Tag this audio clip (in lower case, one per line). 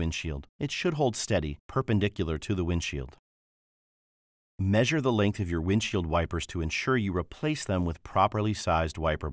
speech